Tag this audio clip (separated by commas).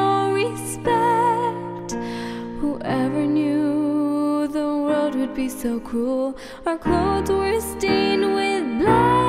Music